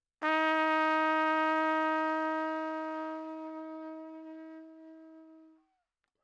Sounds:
music, musical instrument, brass instrument, trumpet

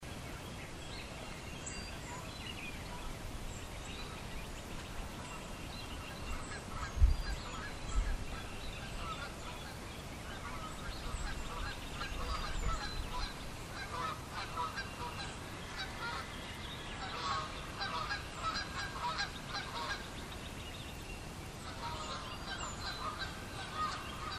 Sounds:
livestock, fowl, animal

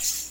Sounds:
rattle (instrument), music, percussion, musical instrument

